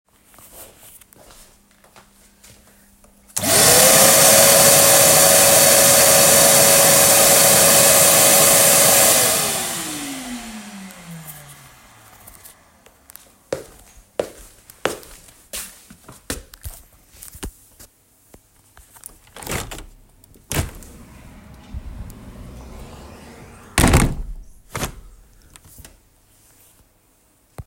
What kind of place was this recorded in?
living room